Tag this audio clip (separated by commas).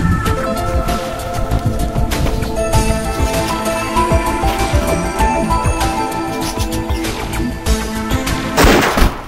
Music, Gunshot